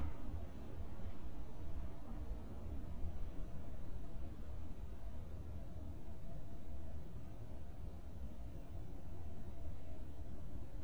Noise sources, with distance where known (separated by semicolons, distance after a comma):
background noise